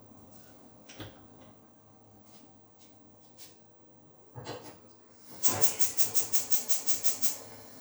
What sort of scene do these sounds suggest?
kitchen